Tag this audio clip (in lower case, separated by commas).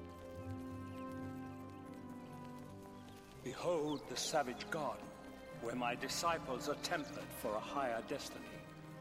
speech, narration, music, man speaking